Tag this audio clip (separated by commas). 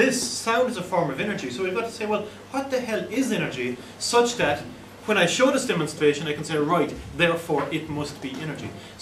Speech